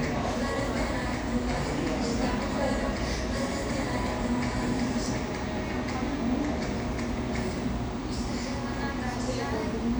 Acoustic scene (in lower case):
cafe